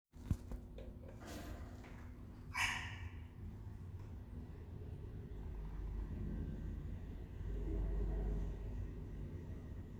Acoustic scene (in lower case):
elevator